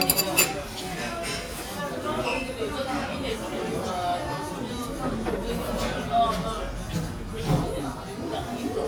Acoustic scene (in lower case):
crowded indoor space